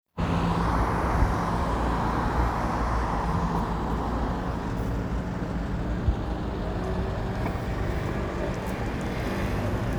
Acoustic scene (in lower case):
street